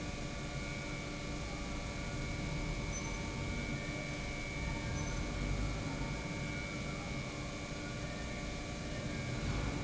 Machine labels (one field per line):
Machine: pump